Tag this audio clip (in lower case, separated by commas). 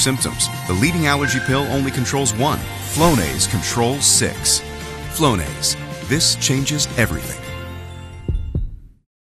music, spray, speech